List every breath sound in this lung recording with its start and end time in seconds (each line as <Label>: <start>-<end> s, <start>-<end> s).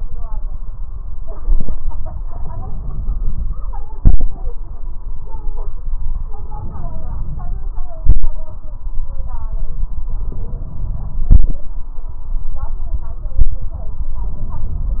Inhalation: 2.18-3.68 s, 6.31-7.71 s, 10.12-11.28 s, 14.22-15.00 s
Exhalation: 3.92-4.49 s, 7.95-8.52 s, 11.30-11.78 s